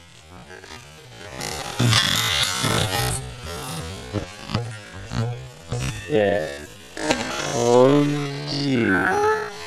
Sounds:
Speech

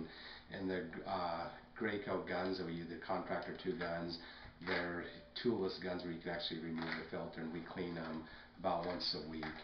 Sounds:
Speech

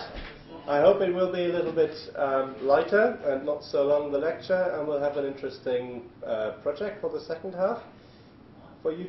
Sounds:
Speech

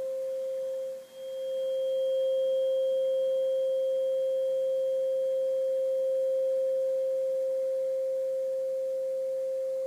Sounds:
Sine wave, Tuning fork

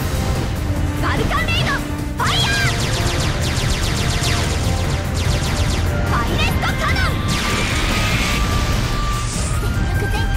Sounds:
Music, Speech

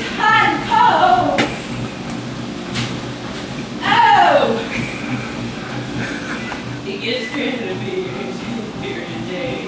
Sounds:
Speech, Music

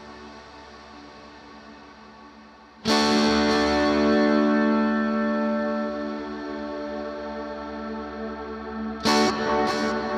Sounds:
Bowed string instrument, Music

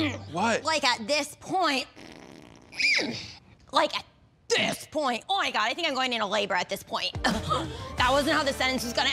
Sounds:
Speech, inside a large room or hall, Fart, Music

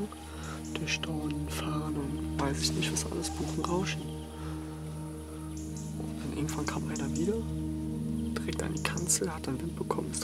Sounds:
sharpen knife

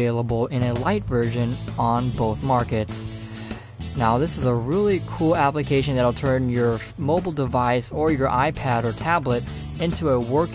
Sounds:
Music, Speech

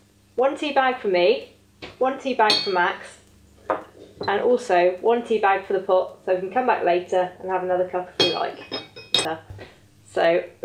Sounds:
Speech

